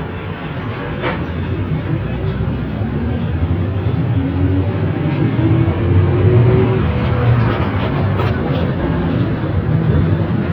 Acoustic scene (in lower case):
bus